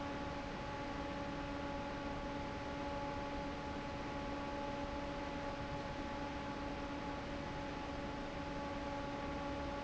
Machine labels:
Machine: fan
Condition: normal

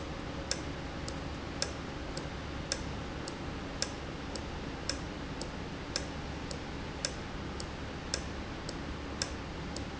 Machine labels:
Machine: valve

